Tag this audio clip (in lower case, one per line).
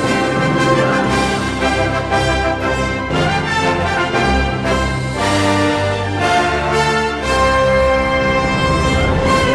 music